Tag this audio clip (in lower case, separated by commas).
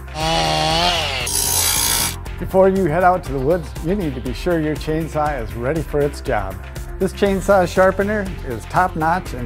tools, music, speech